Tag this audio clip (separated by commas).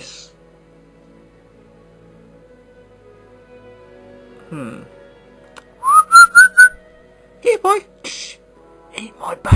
Music, Speech, Whistling